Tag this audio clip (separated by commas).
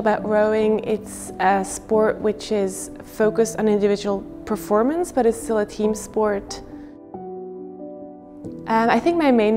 Music, Speech